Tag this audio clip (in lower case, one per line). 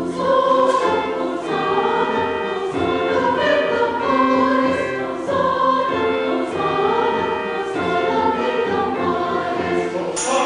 music